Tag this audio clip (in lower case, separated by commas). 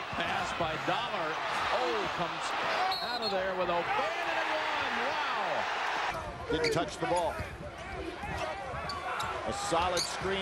basketball bounce